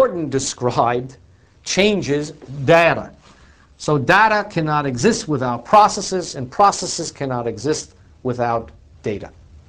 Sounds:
speech

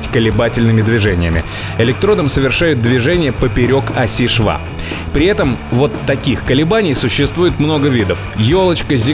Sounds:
arc welding

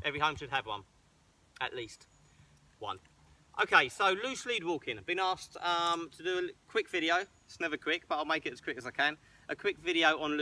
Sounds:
speech

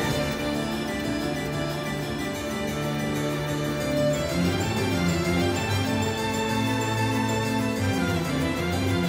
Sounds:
playing harpsichord

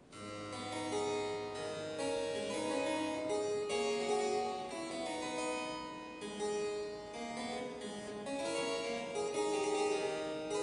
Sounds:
harpsichord, music, playing harpsichord

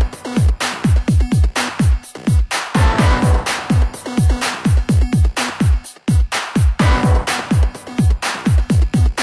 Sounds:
music, soundtrack music

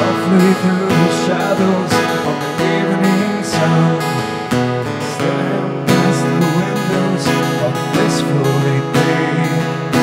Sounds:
music

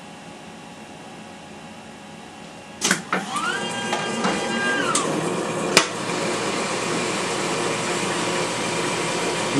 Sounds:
speech

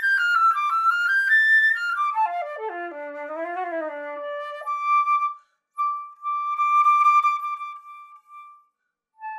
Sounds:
playing flute

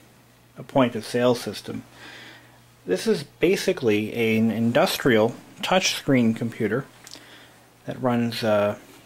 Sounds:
speech

